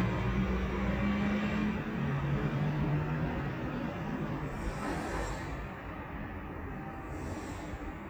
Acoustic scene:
residential area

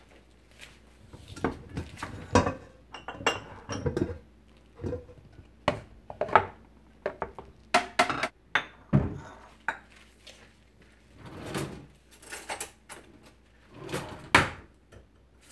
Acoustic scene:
kitchen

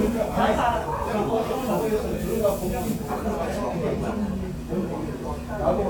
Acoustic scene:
crowded indoor space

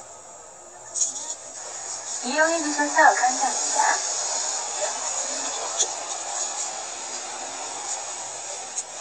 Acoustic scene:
car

